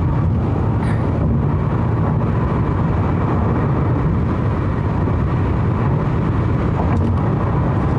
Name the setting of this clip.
car